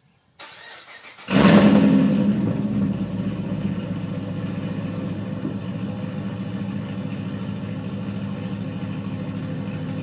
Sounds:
vehicle
car

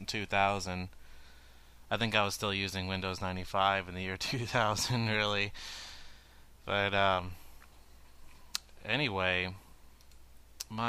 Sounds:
speech

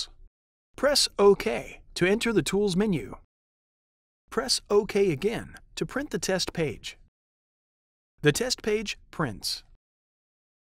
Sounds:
speech synthesizer

